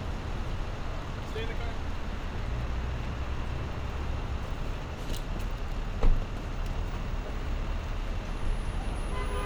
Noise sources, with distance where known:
engine of unclear size; car horn, near; person or small group talking, near

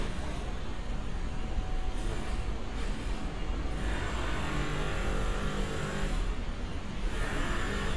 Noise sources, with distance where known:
unidentified powered saw, far

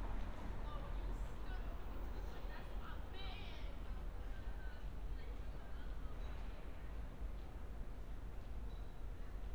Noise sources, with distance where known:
background noise

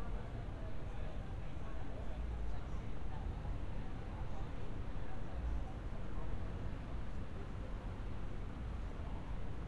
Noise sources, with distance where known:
person or small group talking, far

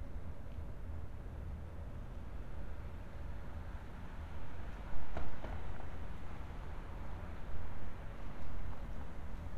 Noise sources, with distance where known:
background noise

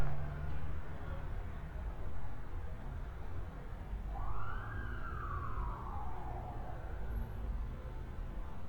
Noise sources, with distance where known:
siren, far

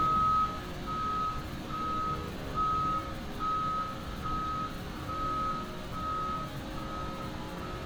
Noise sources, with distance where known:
reverse beeper, near

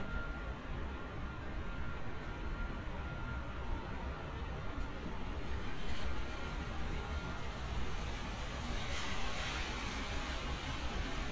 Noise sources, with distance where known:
reverse beeper, far

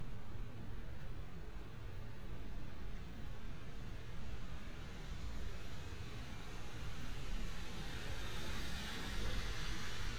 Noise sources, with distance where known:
engine of unclear size, far

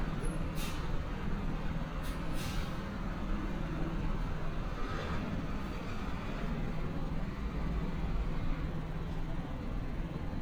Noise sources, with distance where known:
large-sounding engine, near

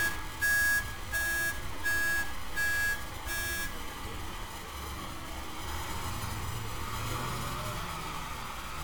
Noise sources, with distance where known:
large-sounding engine, near; unidentified alert signal, near

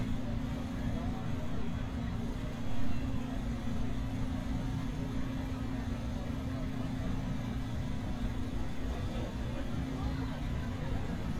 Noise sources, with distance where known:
medium-sounding engine, near; person or small group talking

